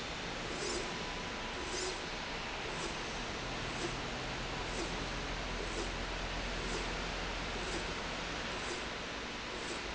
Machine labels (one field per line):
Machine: slide rail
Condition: normal